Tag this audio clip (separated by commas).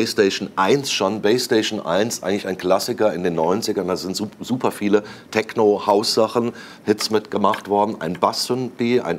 Speech